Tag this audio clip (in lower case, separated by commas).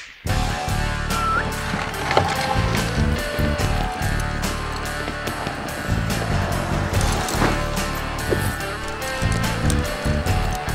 music